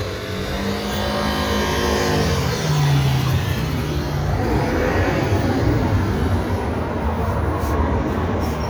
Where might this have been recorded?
on a street